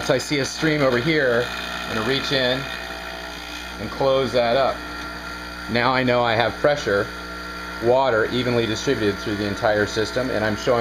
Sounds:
speech

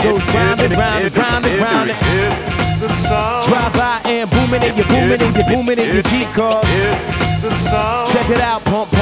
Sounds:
music

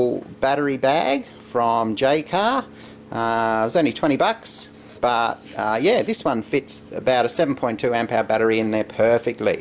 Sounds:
speech

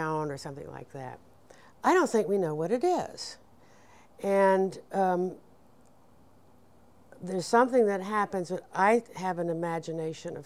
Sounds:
speech

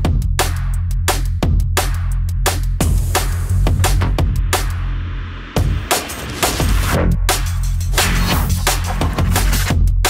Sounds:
music
electronic music
drum and bass

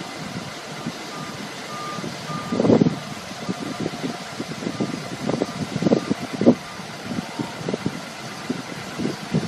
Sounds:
vehicle

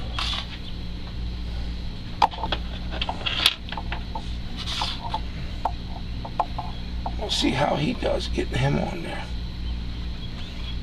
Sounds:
speech

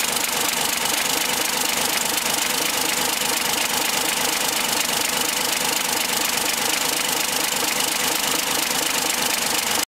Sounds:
idling
medium engine (mid frequency)
engine

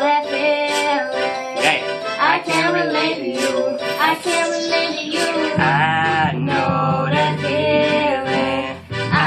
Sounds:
inside a small room
music

